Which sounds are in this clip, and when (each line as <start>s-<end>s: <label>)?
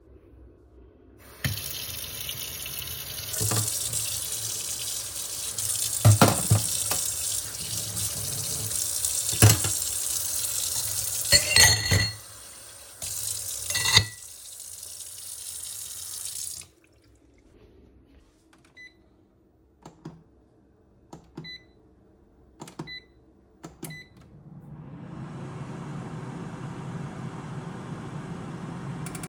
1.3s-16.8s: running water
3.3s-4.1s: wardrobe or drawer
6.0s-6.6s: wardrobe or drawer
9.2s-9.7s: cutlery and dishes
11.2s-12.2s: cutlery and dishes
13.7s-14.2s: cutlery and dishes
18.8s-29.3s: microwave